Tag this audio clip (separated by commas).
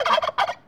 Bird, Animal, Wild animals